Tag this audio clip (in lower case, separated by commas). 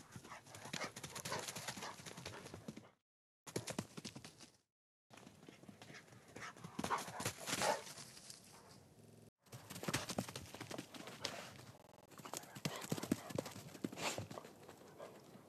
pets, dog, animal